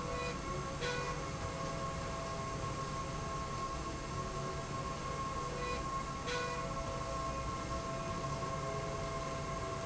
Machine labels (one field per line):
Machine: slide rail